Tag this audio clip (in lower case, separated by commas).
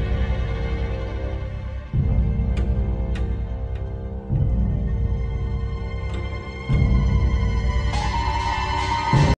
music